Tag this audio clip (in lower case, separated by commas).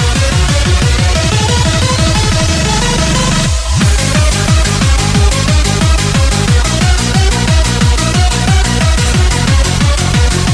music, techno, electronic music